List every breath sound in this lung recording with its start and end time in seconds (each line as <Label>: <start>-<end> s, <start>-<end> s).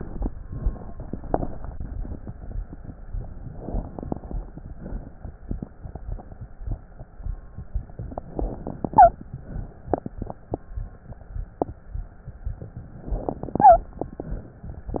Inhalation: 0.82-1.70 s, 3.53-4.41 s, 8.10-9.10 s, 13.00-13.78 s
Exhalation: 0.00-0.28 s, 1.72-2.67 s, 4.46-5.42 s, 9.15-10.40 s, 13.84-14.69 s
Wheeze: 8.92-9.10 s, 13.58-13.78 s